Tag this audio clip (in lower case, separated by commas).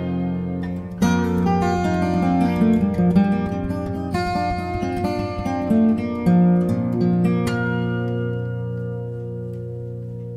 musical instrument, music, playing acoustic guitar, acoustic guitar, plucked string instrument, guitar